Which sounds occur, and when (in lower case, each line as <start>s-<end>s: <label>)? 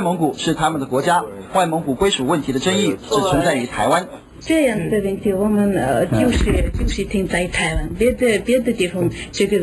0.0s-4.2s: man speaking
0.0s-9.6s: conversation
0.0s-9.6s: mechanisms
4.4s-9.6s: female speech
6.1s-6.6s: generic impact sounds